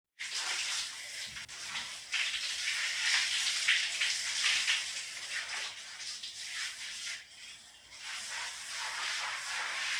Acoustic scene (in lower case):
restroom